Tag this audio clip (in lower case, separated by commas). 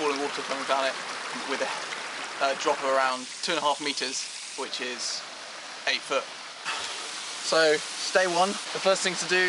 speech